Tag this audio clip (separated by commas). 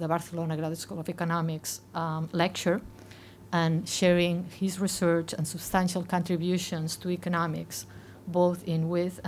Speech